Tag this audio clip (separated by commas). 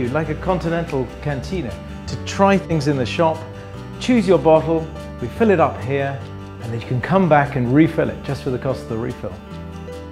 Music, Speech